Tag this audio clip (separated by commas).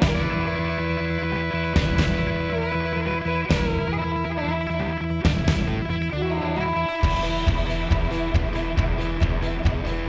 Music